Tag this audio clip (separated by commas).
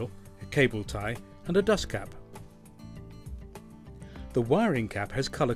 Music, Speech